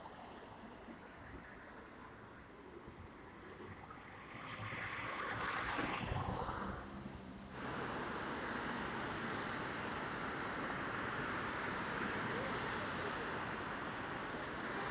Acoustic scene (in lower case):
street